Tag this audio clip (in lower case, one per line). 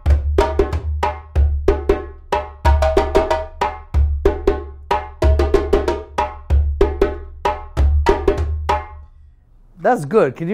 playing djembe